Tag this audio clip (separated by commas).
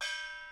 Musical instrument, Percussion, Gong, Music